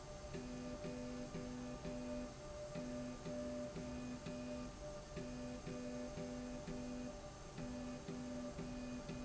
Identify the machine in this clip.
slide rail